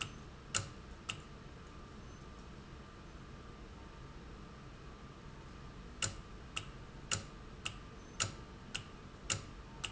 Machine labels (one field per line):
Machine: valve